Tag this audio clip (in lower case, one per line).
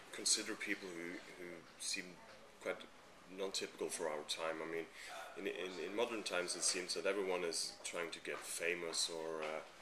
speech